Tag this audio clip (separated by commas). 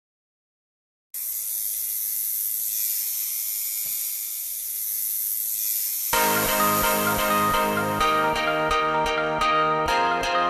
Music